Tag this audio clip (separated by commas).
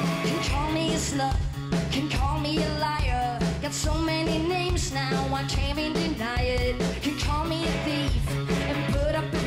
Music